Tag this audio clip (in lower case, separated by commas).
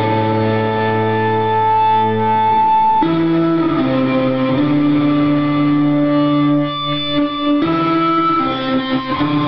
music, bass guitar, musical instrument, electric guitar